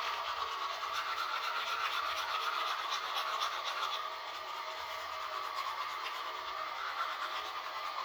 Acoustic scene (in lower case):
restroom